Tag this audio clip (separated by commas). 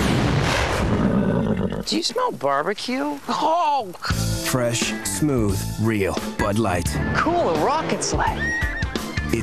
horse neighing, Speech, Horse, Music, Neigh, Animal